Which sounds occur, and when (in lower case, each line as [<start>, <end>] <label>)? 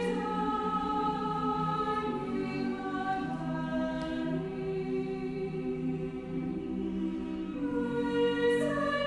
[0.00, 9.05] choir
[0.00, 9.05] music
[3.97, 4.08] tick